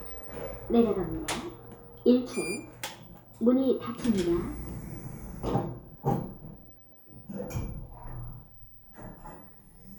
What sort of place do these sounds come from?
elevator